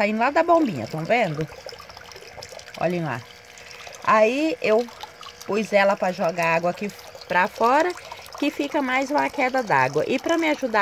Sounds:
splashing water

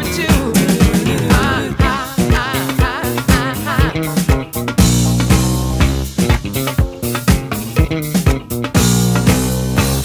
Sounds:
funk
music

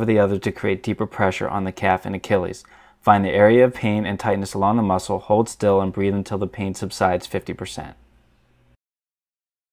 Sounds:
speech

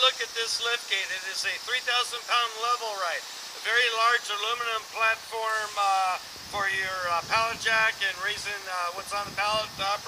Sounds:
speech

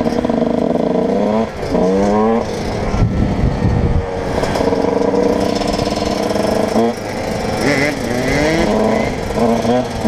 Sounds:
motorcycle
vehicle
outside, urban or man-made
driving motorcycle

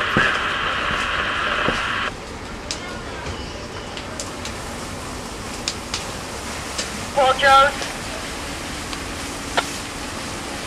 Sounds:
fire

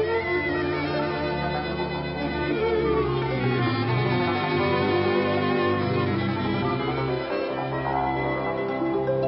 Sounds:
bowed string instrument
violin
playing violin

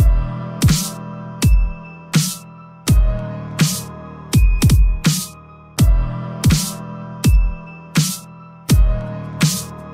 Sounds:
music

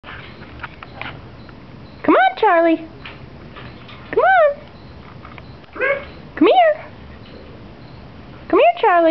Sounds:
animal
pets

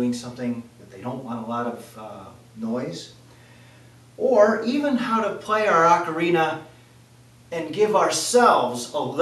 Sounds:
speech

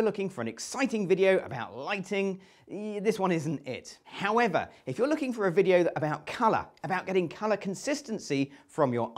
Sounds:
speech

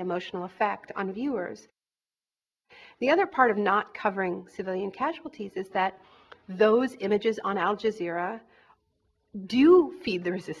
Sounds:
speech

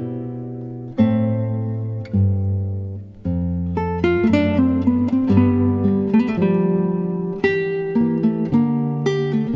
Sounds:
music

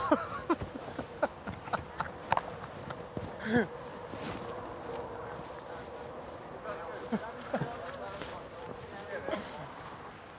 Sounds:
speech

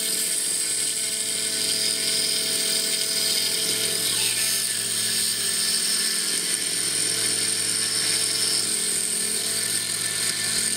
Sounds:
tools

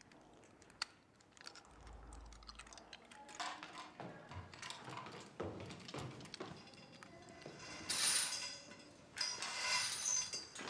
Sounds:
inside a small room

